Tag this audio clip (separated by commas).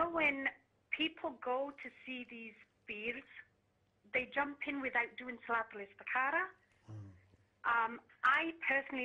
Speech